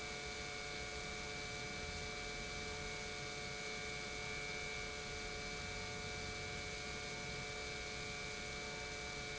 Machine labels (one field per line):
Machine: pump